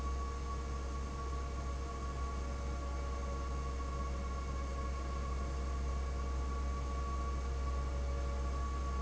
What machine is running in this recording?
fan